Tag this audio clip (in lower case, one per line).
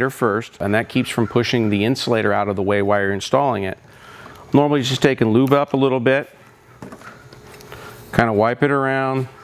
speech